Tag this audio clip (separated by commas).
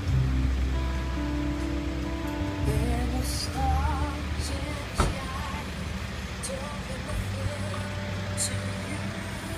Vehicle, Music, Car